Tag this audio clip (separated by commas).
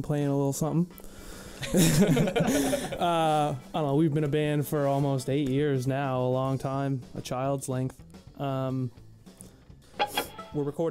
Speech